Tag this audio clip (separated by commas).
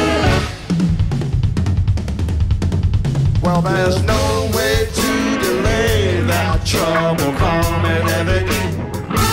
Snare drum, Drum, Rimshot, Drum kit, Bass drum, Percussion